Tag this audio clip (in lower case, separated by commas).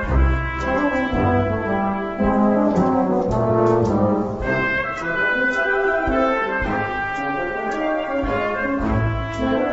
music, french horn